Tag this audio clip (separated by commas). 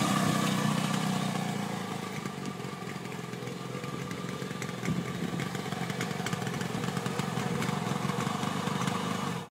Vehicle, Motorcycle, outside, urban or man-made, driving motorcycle